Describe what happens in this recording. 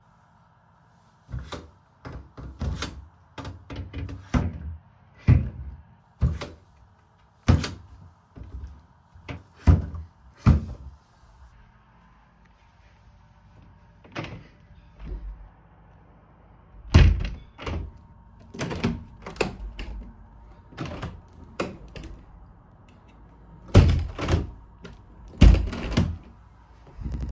Holding the phone, I open and close several wardrobe drawers then I walk over to the window to open and close it.